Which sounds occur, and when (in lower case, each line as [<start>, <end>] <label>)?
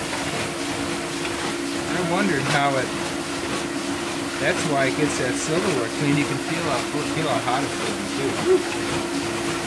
[0.00, 9.65] washing machine
[0.00, 9.65] water
[1.84, 2.84] male speech
[4.30, 7.68] male speech
[7.73, 7.95] generic impact sounds